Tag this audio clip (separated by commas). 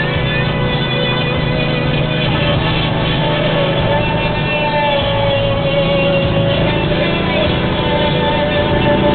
Music